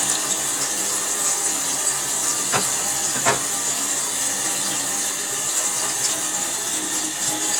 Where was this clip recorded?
in a kitchen